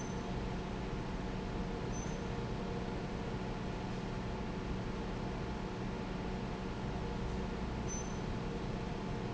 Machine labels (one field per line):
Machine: fan